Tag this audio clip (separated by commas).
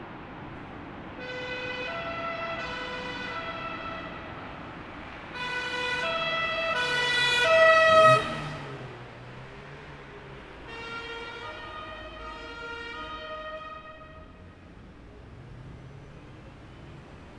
Siren, Alarm, Vehicle, Motor vehicle (road)